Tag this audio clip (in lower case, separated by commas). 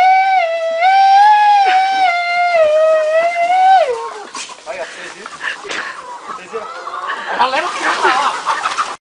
speech, cluck, chicken